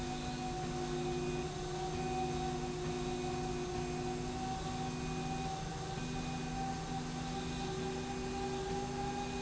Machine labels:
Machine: slide rail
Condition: normal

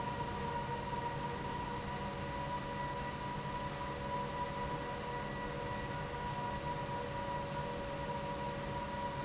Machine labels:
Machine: fan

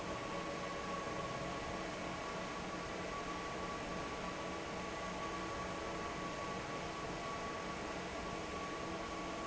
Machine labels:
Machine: fan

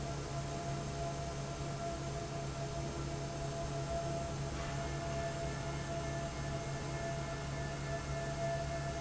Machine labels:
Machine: fan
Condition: normal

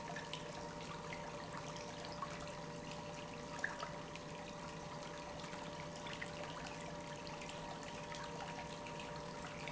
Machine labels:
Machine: pump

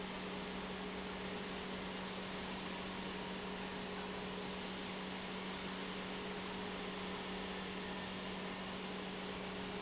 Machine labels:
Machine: pump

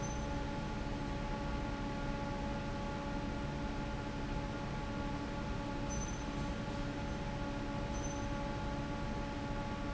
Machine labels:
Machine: fan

